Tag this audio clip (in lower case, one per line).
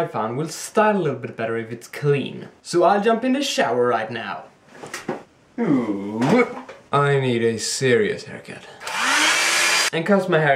speech